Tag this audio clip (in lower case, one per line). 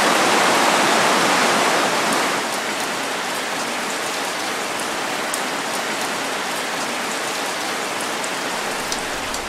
rain on surface
raindrop
rain